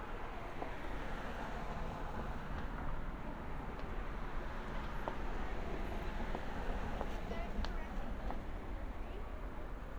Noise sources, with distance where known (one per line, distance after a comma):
background noise